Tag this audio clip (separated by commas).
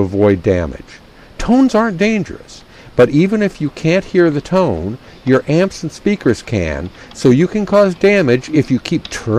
Speech